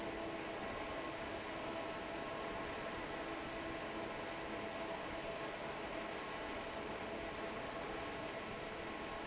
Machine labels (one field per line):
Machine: fan